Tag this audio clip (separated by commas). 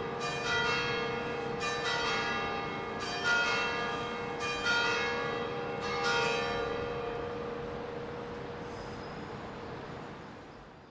telephone bell ringing